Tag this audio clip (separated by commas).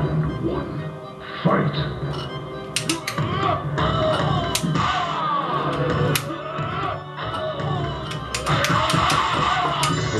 Speech, Music